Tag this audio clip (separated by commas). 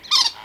Animal, Bird vocalization, Bird, livestock, Wild animals, Fowl